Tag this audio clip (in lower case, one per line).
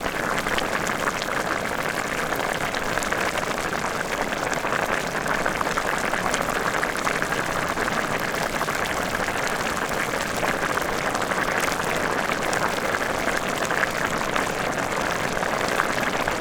liquid
boiling